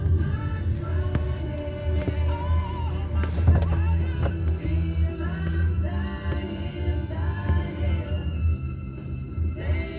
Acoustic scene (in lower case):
car